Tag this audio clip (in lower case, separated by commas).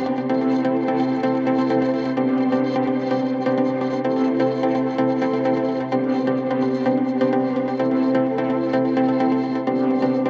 music